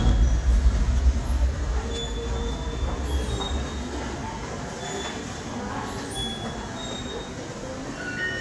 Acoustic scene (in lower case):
subway station